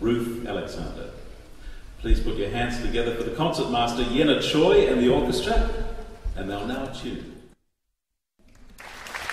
A man speaks and an audience gives applause